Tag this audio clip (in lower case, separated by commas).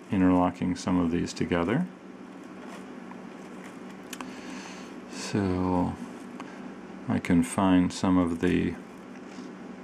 inside a small room, speech